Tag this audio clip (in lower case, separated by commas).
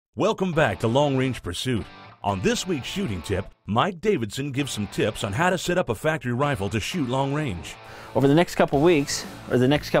music, speech